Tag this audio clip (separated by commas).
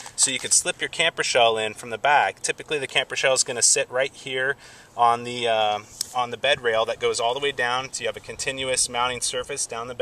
Speech